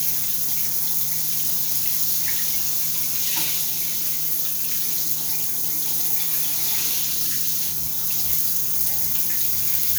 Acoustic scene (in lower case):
restroom